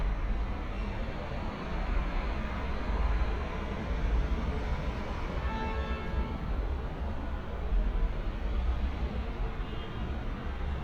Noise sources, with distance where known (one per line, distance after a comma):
car horn